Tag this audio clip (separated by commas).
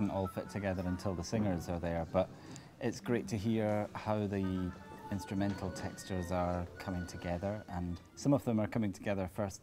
Music, Speech